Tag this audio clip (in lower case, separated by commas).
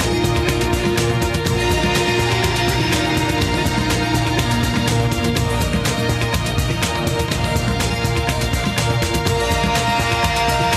music